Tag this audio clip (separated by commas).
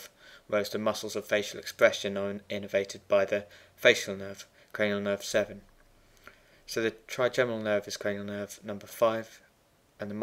Speech